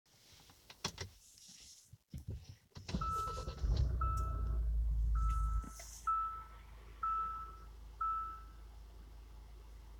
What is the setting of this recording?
car